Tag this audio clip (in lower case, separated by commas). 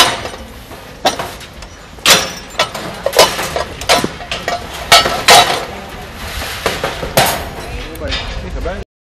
speech